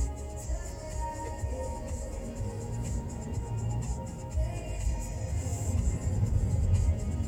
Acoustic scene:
car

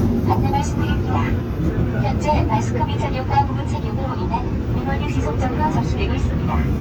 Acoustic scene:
subway train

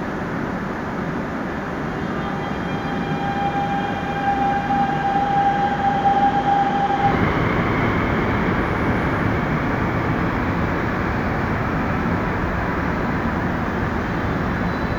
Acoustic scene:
subway station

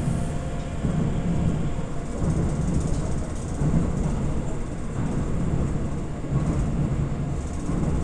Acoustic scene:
subway train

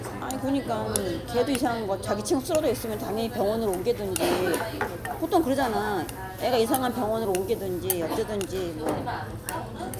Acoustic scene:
crowded indoor space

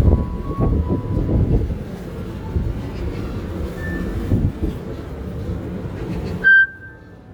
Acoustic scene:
park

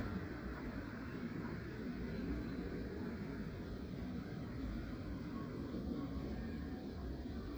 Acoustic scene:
residential area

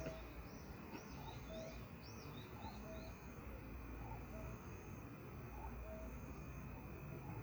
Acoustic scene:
park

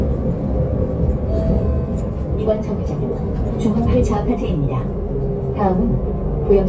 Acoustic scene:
bus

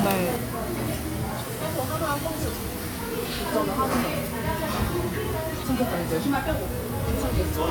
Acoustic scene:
restaurant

